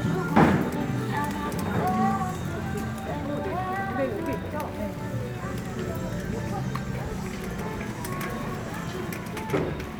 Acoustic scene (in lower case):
street